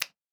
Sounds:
finger snapping
hands

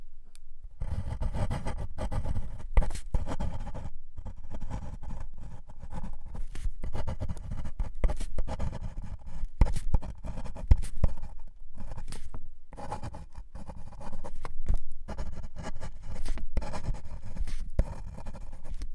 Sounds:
home sounds
writing

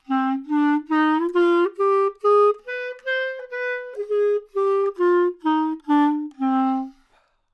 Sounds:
music
wind instrument
musical instrument

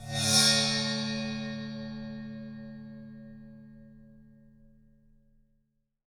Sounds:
musical instrument
music
percussion

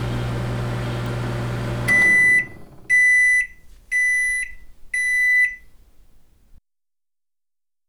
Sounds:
domestic sounds
microwave oven

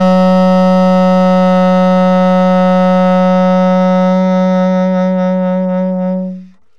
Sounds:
wind instrument
musical instrument
music

